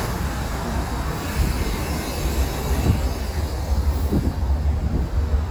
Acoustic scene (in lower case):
street